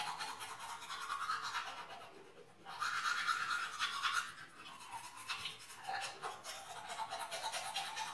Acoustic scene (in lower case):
restroom